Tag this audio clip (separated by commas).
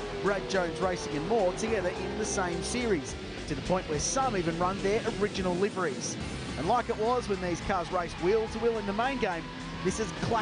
Car, Music, Speech, Vehicle, Motor vehicle (road)